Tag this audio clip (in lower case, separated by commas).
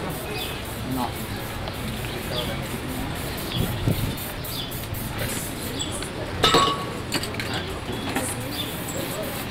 speech, spray